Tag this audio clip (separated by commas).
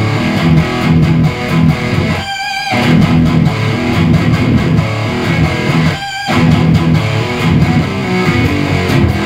Musical instrument, Music, Plucked string instrument, Speech, Electric guitar, Guitar, Strum